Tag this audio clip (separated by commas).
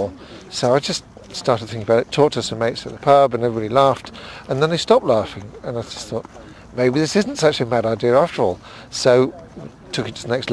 Speech